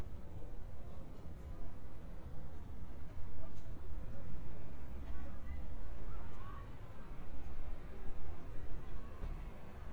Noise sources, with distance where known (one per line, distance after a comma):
unidentified human voice, far